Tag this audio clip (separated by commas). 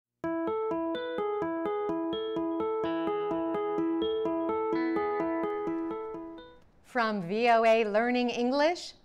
Keyboard (musical)